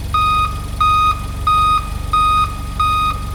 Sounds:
Engine

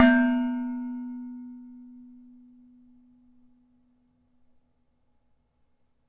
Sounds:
Domestic sounds, dishes, pots and pans

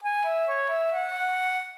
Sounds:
Music, Wind instrument, Musical instrument

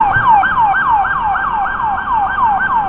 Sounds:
Siren, Vehicle, Motor vehicle (road), Alarm

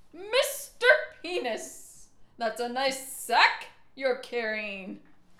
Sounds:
Yell, Speech, Shout, Human voice, Female speech

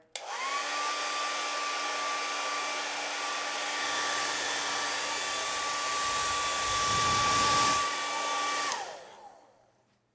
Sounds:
Domestic sounds

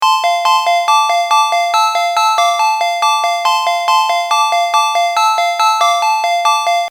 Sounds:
Alarm, Telephone, Ringtone

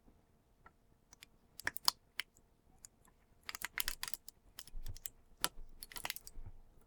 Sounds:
Crushing

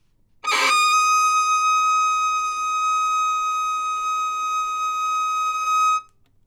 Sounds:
Musical instrument, Bowed string instrument, Music

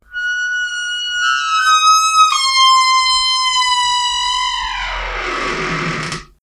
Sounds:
Squeak

